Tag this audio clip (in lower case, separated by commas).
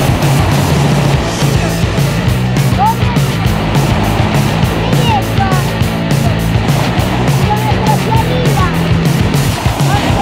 motorboat, speech, music